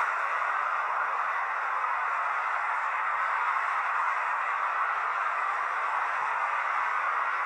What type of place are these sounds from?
street